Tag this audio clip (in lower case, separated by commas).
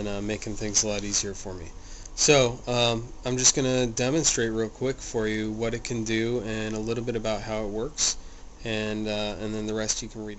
speech